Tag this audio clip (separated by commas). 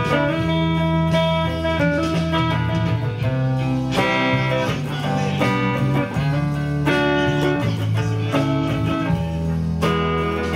Music, Speech